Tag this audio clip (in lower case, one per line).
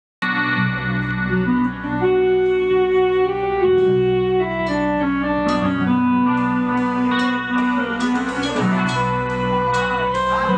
electric guitar
inside a large room or hall
plucked string instrument
music
musical instrument